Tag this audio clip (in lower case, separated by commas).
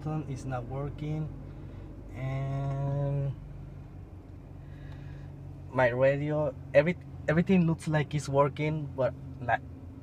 speech